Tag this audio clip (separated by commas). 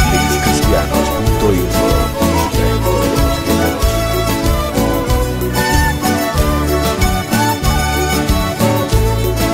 Music, Exciting music